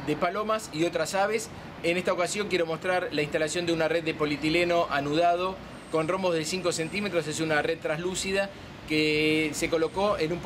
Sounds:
speech, outside, urban or man-made

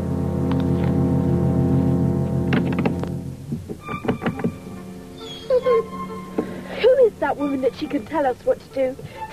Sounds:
speech, music

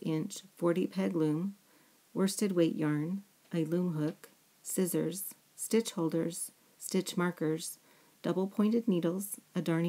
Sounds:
speech

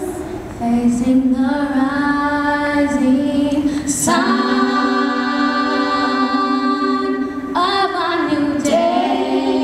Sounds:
singing, music

